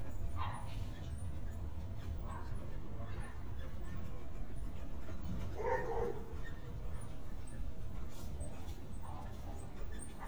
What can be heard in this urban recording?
dog barking or whining